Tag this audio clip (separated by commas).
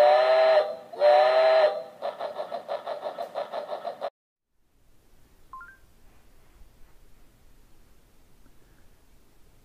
train whistling